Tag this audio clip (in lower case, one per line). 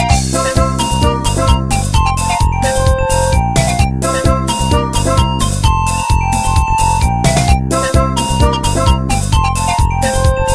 music